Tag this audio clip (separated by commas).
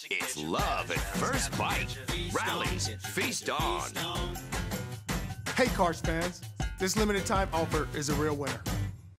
Music, Speech